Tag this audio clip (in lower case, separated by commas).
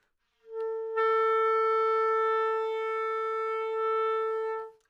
musical instrument, music, wind instrument